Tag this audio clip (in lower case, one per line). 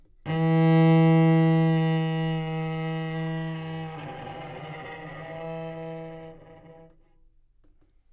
musical instrument
bowed string instrument
music